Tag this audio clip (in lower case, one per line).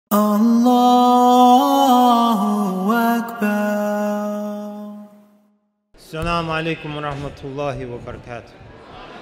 speech